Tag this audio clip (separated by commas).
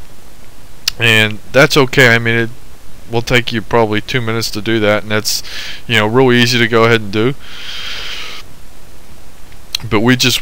Speech